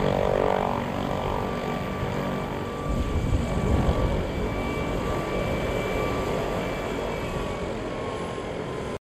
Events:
[0.00, 8.97] helicopter

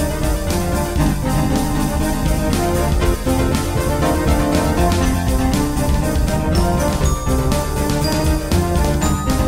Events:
[0.01, 9.45] music

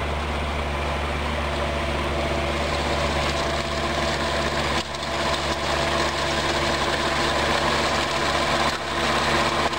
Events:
[0.00, 9.75] medium engine (mid frequency)

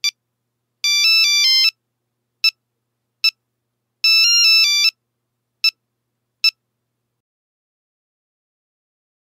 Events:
[0.00, 0.08] ringtone
[0.00, 7.16] background noise
[0.79, 1.68] ringtone
[2.39, 2.51] ringtone
[3.20, 3.32] ringtone
[3.98, 4.91] ringtone
[5.60, 5.72] ringtone
[6.38, 6.51] ringtone

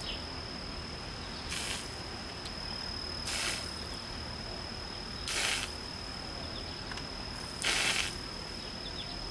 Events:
[0.00, 9.30] cricket
[0.00, 9.30] mechanisms
[0.05, 0.19] bird call
[1.20, 1.43] bird call
[1.47, 1.90] spray
[2.42, 2.54] generic impact sounds
[3.27, 3.65] spray
[5.26, 5.68] spray
[6.44, 6.77] bird call
[6.93, 7.03] generic impact sounds
[7.62, 8.11] spray
[8.62, 9.16] bird call

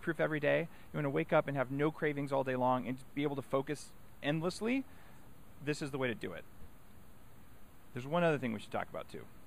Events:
[0.00, 0.66] man speaking
[0.00, 9.45] wind
[0.69, 0.90] breathing
[0.93, 3.04] man speaking
[3.17, 3.94] man speaking
[4.18, 4.83] man speaking
[4.92, 5.28] breathing
[5.64, 6.41] man speaking
[7.94, 9.30] man speaking

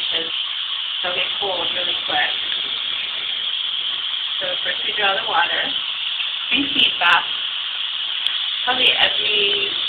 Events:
[0.00, 9.85] sink (filling or washing)
[0.00, 9.85] water tap
[0.07, 0.27] female speech
[0.99, 2.31] female speech
[4.39, 5.71] female speech
[6.49, 7.21] female speech
[8.65, 9.71] female speech
[9.50, 9.57] tick

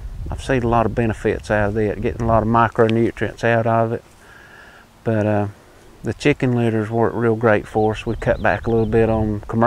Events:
[0.01, 4.07] wind
[0.17, 4.01] male speech
[5.04, 5.54] male speech
[5.99, 9.65] male speech
[5.99, 9.65] wind
[6.53, 9.14] tweet

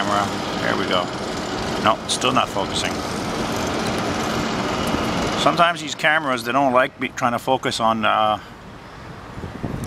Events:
[0.00, 0.34] man speaking
[0.00, 9.85] aircraft
[0.55, 1.08] man speaking
[1.84, 2.98] man speaking
[5.36, 8.38] man speaking

